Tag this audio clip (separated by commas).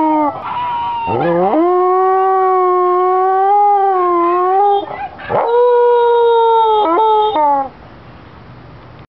Animal, canids, Dog, Howl, pets